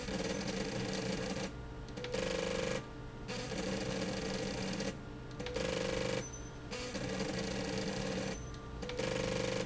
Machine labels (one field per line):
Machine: slide rail